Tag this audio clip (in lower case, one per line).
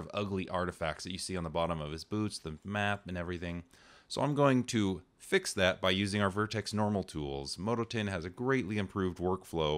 speech